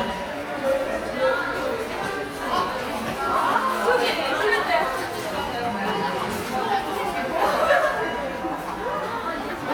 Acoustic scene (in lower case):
subway station